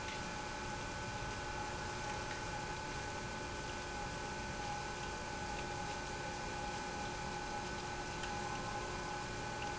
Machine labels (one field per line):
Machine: pump